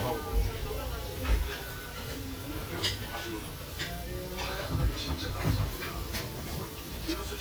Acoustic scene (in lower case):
restaurant